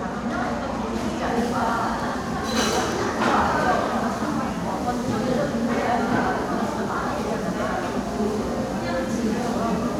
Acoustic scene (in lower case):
crowded indoor space